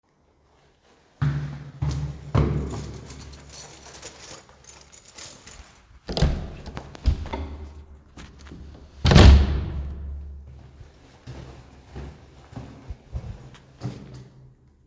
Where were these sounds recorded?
entrance hall